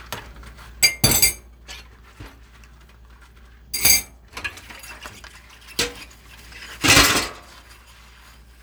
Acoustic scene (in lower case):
kitchen